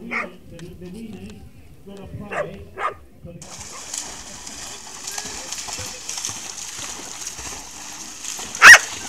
Dogs barking and splashing and a TV muffled in the background